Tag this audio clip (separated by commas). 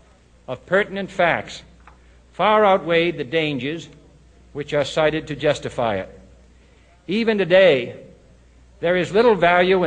Speech synthesizer, Speech, man speaking, Narration